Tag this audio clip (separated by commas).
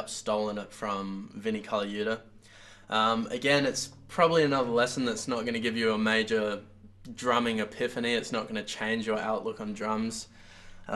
Speech